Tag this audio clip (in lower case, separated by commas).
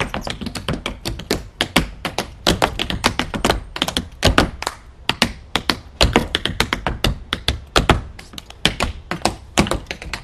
outside, urban or man-made, tap